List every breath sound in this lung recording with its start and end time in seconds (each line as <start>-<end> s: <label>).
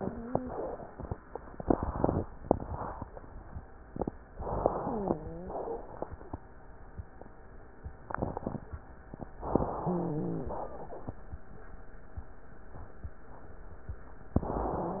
0.00-0.56 s: wheeze
4.34-5.18 s: inhalation
4.82-5.72 s: wheeze
5.44-6.06 s: exhalation
9.52-10.56 s: inhalation
9.80-10.56 s: wheeze
10.56-11.20 s: exhalation
14.37-15.00 s: inhalation